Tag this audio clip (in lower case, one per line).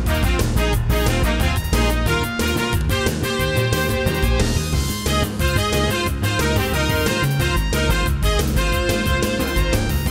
music